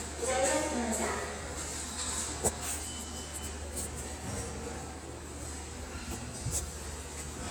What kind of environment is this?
subway station